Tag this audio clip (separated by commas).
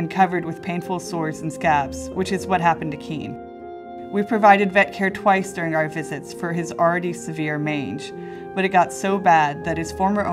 Music, Speech